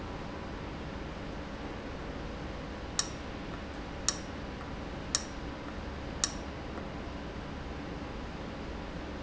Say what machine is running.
valve